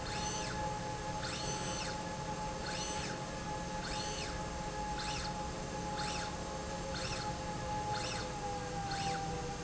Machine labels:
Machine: slide rail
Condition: normal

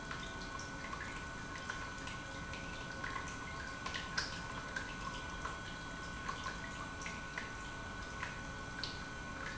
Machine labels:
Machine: pump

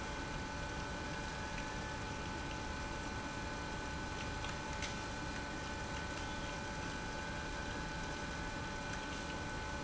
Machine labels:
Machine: pump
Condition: abnormal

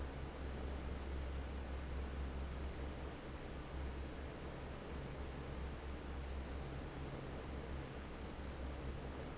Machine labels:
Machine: fan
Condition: normal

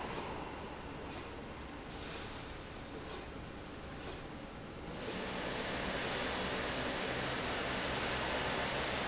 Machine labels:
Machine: slide rail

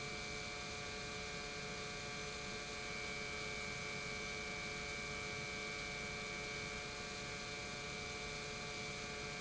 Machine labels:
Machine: pump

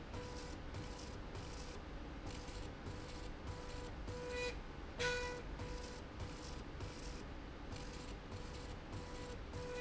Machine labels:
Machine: slide rail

